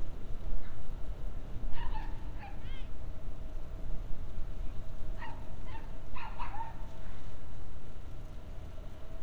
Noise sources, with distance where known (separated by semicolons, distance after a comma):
person or small group shouting; dog barking or whining